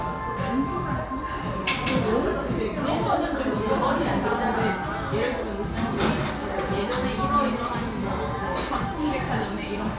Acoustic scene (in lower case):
cafe